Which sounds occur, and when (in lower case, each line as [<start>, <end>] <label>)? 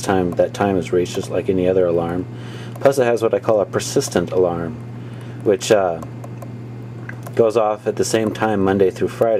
[0.00, 9.35] mechanisms
[7.35, 9.35] male speech
[8.29, 8.39] clicking